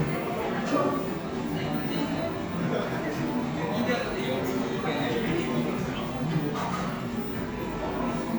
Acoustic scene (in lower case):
cafe